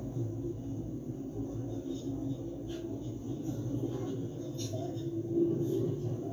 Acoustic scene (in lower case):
subway train